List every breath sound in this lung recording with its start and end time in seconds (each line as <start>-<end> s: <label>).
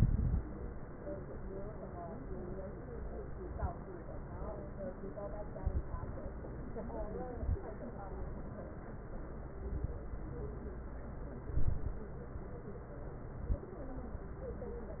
0.00-0.41 s: inhalation
0.00-0.41 s: crackles
3.48-3.78 s: inhalation
3.48-3.78 s: crackles
5.57-6.25 s: inhalation
5.57-6.25 s: crackles
7.33-7.64 s: inhalation
7.33-7.64 s: crackles
9.75-10.05 s: inhalation
9.75-10.05 s: crackles
11.54-12.04 s: inhalation
11.54-12.04 s: crackles
13.38-13.70 s: inhalation
13.38-13.70 s: crackles